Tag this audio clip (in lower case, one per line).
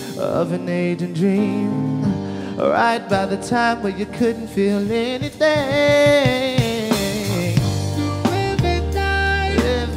music